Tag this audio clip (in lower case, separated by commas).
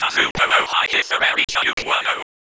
whispering, human voice